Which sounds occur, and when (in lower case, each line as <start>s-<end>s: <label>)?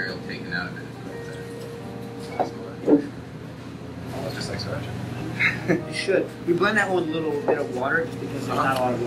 0.0s-0.8s: male speech
0.0s-2.8s: music
0.0s-9.0s: conversation
0.0s-9.0s: mechanisms
1.0s-1.3s: human voice
1.1s-1.7s: liquid
2.1s-2.3s: generic impact sounds
2.2s-2.8s: male speech
2.3s-2.5s: glass
2.8s-3.1s: generic impact sounds
3.4s-3.9s: surface contact
4.1s-4.9s: male speech
5.3s-5.8s: laughter
5.7s-6.5s: music
5.9s-6.2s: male speech
6.2s-6.4s: generic impact sounds
6.5s-8.0s: male speech
6.5s-6.6s: tick
6.7s-6.9s: generic impact sounds
7.1s-7.7s: music
7.4s-7.6s: generic impact sounds
8.2s-8.7s: surface contact
8.4s-9.0s: male speech
8.7s-8.8s: generic impact sounds